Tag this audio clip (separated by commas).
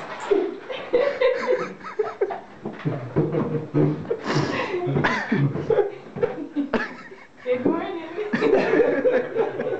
Speech